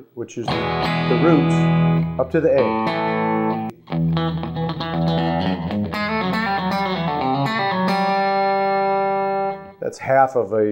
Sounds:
country
musical instrument
music
electric guitar
plucked string instrument
speech
guitar

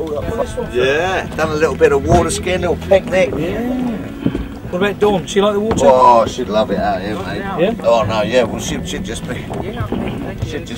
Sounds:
speech

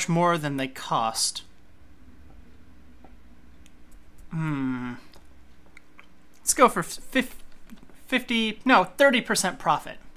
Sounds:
speech

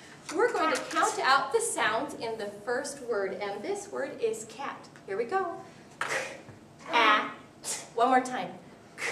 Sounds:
speech

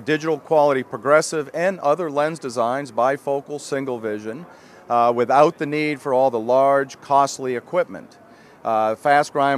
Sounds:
speech

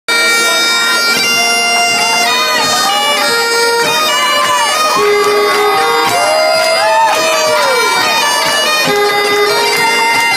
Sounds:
woodwind instrument
bagpipes

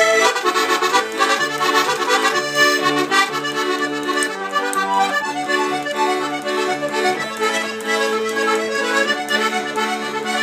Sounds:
playing accordion

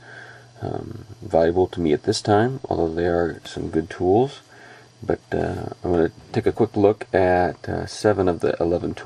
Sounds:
speech

